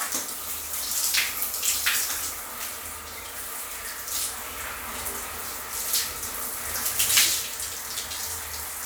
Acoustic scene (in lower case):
restroom